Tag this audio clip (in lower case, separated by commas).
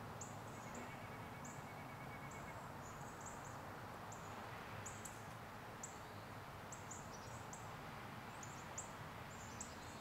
bird, animal